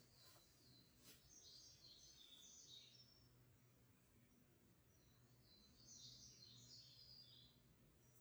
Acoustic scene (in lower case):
park